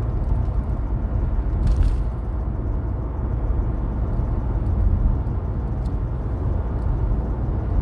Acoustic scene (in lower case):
car